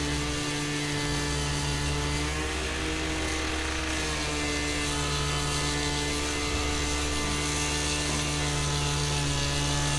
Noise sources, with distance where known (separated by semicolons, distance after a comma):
unidentified powered saw, near